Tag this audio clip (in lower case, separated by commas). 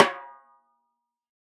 percussion, snare drum, music, drum, musical instrument